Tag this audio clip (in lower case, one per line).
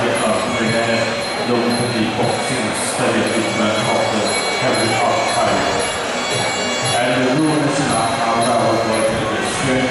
speech